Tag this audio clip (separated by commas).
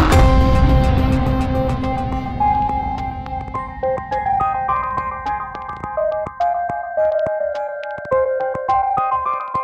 Music